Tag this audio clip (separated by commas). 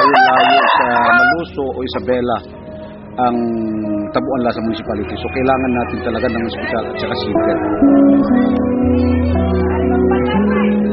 Speech, Music